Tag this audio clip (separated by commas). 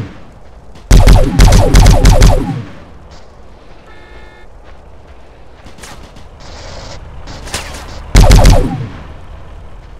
Fusillade